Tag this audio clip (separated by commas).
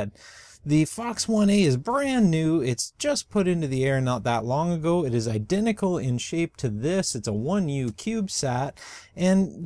Speech